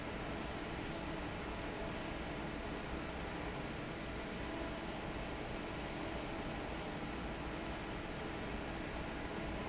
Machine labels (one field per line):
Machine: fan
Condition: normal